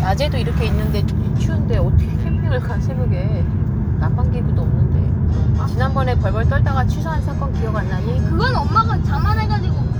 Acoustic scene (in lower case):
car